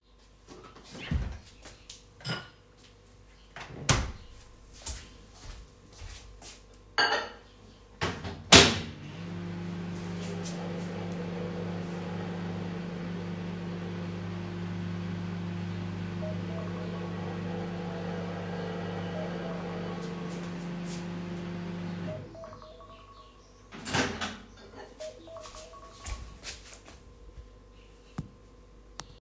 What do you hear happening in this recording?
I opened a fridge to get a plate of food and closed it. Then opened the microwave put the food, closed it, and began heating my food, while I was doing that my tablet alarm rang.